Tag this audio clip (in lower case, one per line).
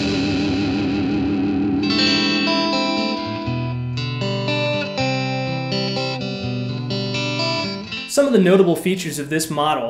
speech
music
electric guitar
plucked string instrument
musical instrument
guitar